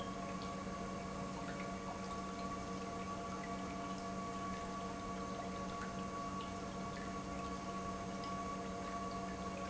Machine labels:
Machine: pump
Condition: normal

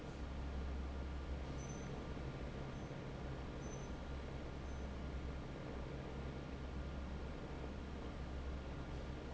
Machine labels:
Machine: fan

